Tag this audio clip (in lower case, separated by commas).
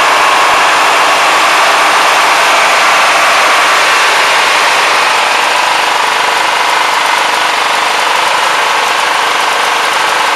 lawn mower, engine